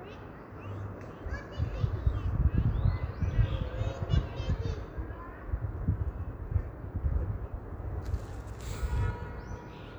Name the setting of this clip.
park